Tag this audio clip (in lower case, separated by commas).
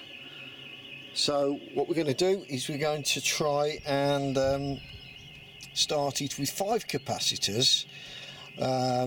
speech